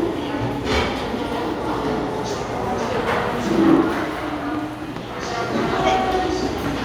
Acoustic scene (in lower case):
restaurant